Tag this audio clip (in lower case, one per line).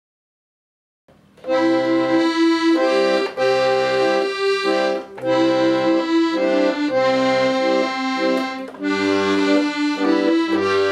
playing accordion